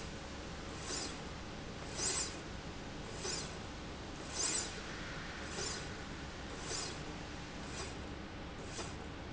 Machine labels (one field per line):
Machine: slide rail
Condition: normal